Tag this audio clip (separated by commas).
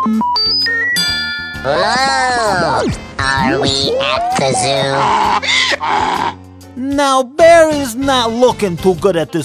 Speech, Music